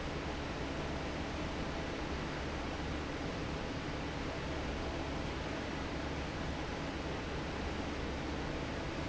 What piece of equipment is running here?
fan